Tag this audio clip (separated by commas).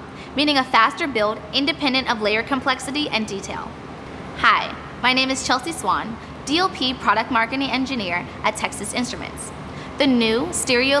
Speech